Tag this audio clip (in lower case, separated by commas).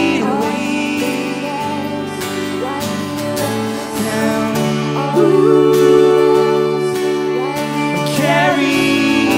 tender music, music